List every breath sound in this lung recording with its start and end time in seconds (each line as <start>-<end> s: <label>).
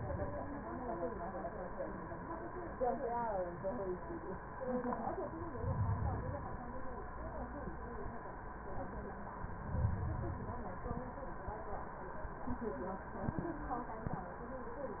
5.44-6.68 s: inhalation
9.41-10.65 s: inhalation